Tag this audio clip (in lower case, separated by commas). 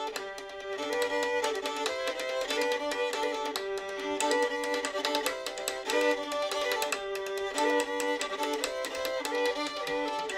violin, bowed string instrument, playing violin